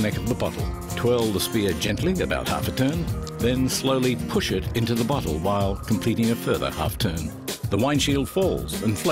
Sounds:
speech
music

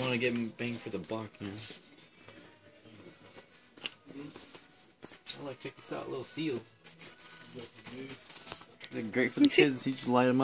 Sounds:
inside a public space
speech

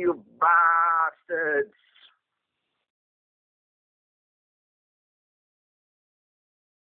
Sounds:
speech

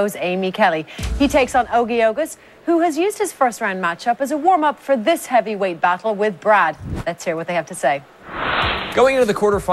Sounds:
music
slam
speech

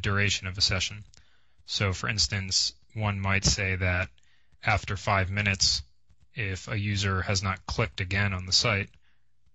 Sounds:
speech

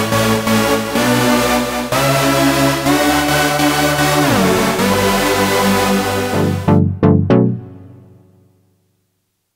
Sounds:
music

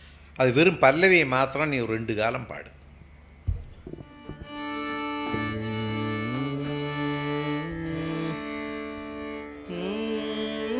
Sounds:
speech
carnatic music
music

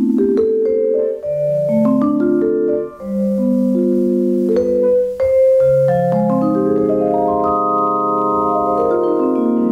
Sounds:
music
playing vibraphone
musical instrument
vibraphone

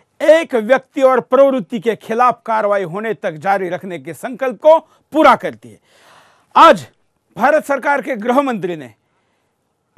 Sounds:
man speaking
monologue
speech

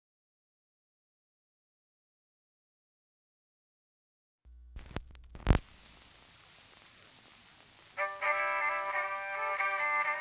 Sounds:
music

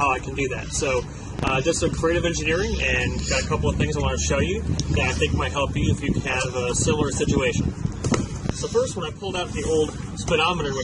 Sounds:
speech

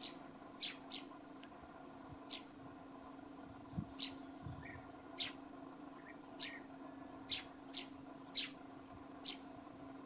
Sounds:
barn swallow calling

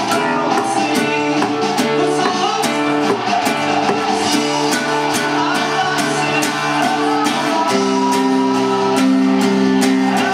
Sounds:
strum
acoustic guitar
guitar
music
musical instrument
plucked string instrument

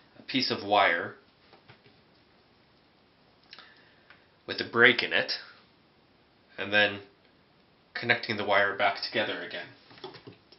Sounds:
speech

